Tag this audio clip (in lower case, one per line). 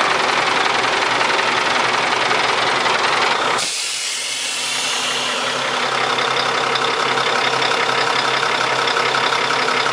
vehicle
truck